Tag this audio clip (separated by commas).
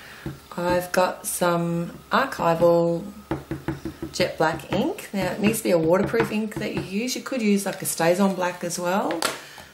Speech